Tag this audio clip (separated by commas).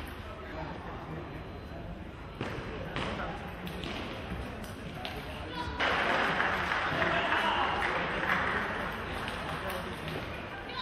Speech